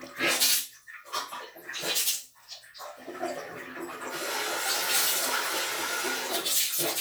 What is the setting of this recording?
restroom